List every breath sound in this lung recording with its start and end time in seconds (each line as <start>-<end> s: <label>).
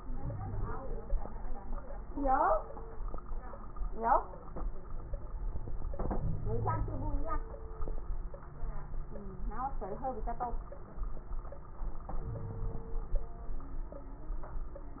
0.17-0.73 s: wheeze
6.20-7.25 s: wheeze
12.20-12.86 s: wheeze